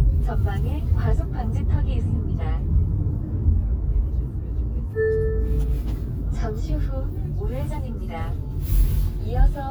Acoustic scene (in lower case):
car